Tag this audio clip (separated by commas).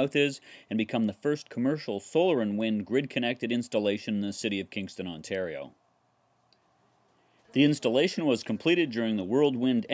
Speech